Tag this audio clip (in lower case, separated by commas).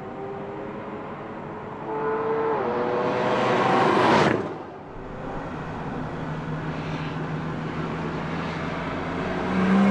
car passing by, car